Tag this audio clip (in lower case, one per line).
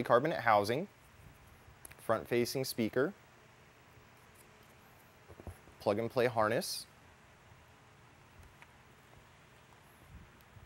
speech